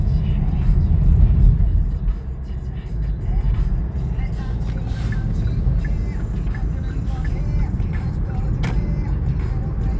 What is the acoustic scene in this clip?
car